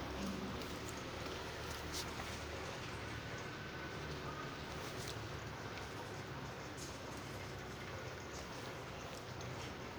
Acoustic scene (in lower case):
residential area